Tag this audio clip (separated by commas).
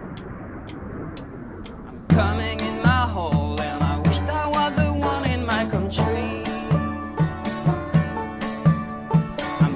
Music